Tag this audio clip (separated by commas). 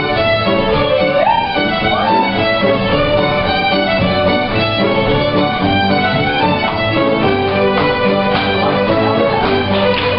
fiddle, Musical instrument, Music